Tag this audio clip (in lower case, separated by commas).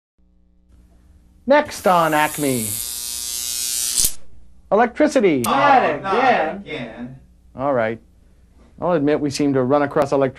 inside a small room, electric razor, speech